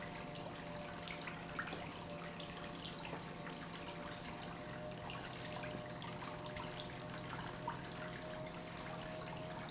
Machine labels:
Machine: pump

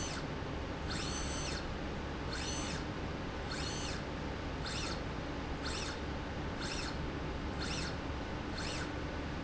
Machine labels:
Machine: slide rail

